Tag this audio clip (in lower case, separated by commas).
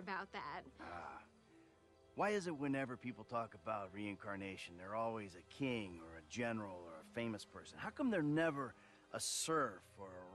speech